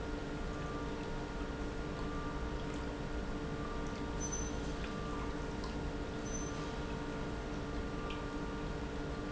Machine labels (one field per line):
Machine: pump